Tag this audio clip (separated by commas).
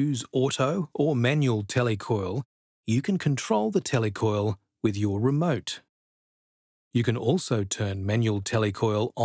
Speech